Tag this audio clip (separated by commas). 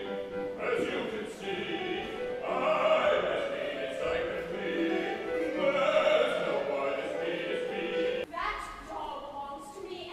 Music, Opera, Speech